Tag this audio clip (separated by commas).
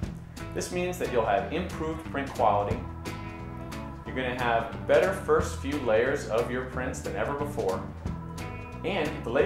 Speech, Music